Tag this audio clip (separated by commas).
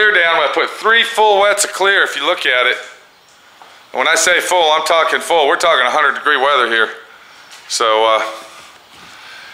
Speech